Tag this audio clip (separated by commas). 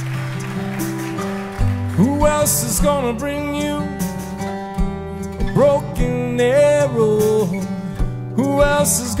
Music